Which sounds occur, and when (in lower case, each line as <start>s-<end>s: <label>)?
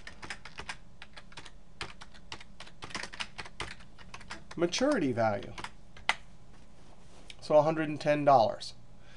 0.0s-0.8s: computer keyboard
0.0s-9.1s: background noise
1.0s-1.5s: computer keyboard
1.8s-2.2s: computer keyboard
2.3s-2.4s: computer keyboard
2.6s-2.7s: computer keyboard
2.8s-3.5s: computer keyboard
3.6s-3.9s: computer keyboard
4.0s-5.0s: computer keyboard
4.6s-5.5s: male speech
5.4s-5.7s: computer keyboard
6.0s-6.2s: computer keyboard
6.5s-7.4s: generic impact sounds
7.3s-7.4s: tick
7.4s-8.8s: male speech
9.0s-9.1s: breathing